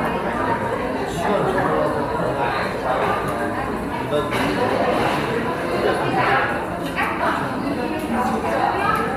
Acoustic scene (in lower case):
cafe